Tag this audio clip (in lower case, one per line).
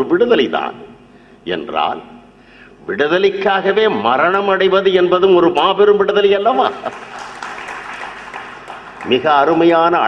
male speech
speech